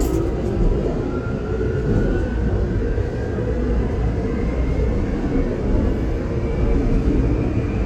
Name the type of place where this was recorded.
subway train